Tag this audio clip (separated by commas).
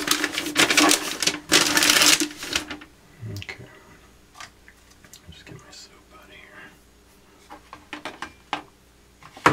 Speech